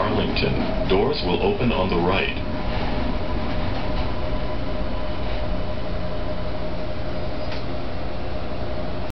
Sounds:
Speech

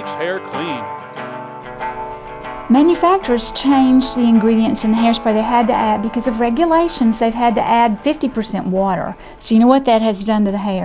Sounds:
Music, Speech

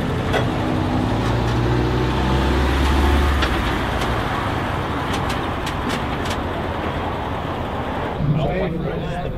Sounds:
Car, Vehicle, Speech

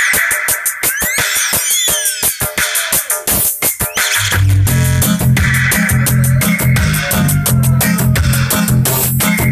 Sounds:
swish, Music

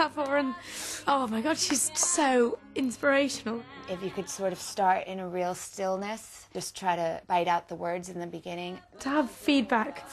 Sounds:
Singing, Female speech, Music, Speech

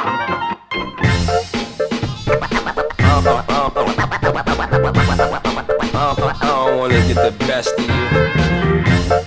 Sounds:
Music, Funk

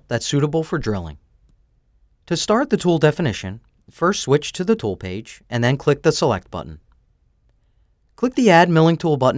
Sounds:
Speech

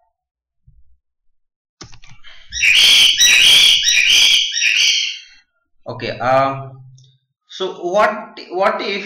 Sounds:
Speech

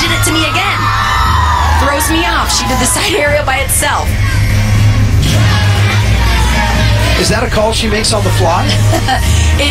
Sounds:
inside a large room or hall, Speech, Music

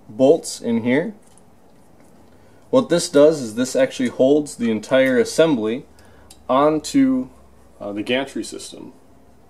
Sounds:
Speech

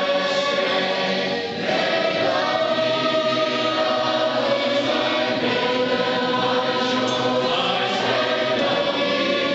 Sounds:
Music, Vocal music, Choir, Gospel music, Singing, Christian music

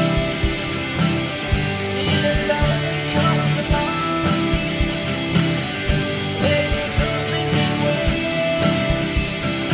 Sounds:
Music

